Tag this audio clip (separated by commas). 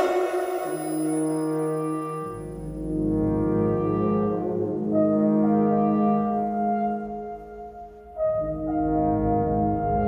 playing french horn